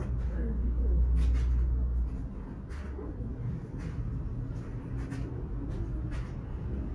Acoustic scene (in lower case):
subway station